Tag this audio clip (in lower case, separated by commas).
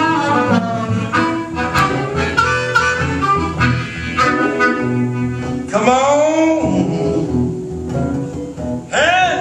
music